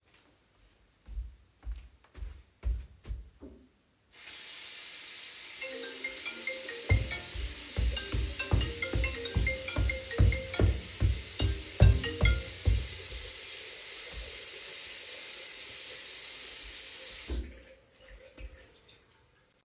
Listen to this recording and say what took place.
I walked into the bathroom turned on the water and started to wash my handy. While washing my hands my phone started to ring. I walked to the phone while it was ringing and the water was running. Then I turned off my phone and the water.